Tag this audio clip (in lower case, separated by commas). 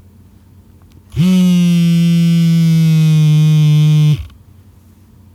telephone, alarm